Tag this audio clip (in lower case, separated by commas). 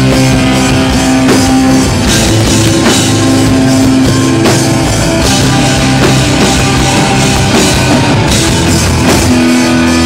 music